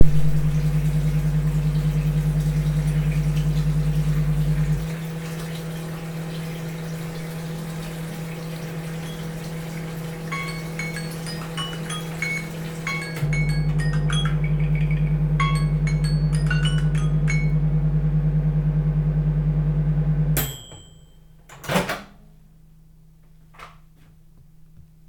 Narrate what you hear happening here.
I was washing dishes and warming up food in the microwave, then my phone alarm rang and I remembered to take the food out. I turned the tap off, walked to the microwave, and opened it to take the food out.